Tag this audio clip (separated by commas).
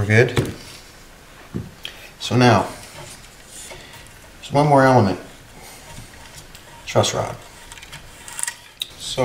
Speech